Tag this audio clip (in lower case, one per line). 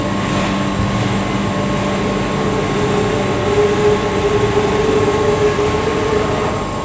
mechanisms
engine